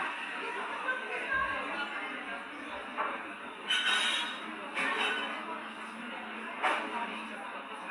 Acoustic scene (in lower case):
cafe